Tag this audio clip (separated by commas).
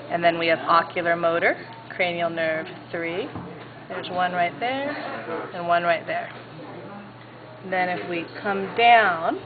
Speech